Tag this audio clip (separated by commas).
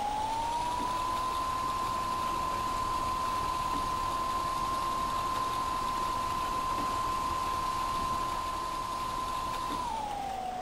Vehicle, Bus